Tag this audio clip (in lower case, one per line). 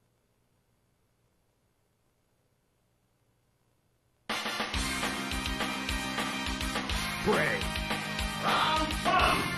music
speech